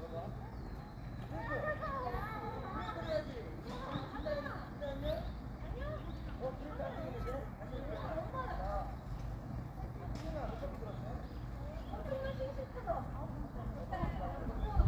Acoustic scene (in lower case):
park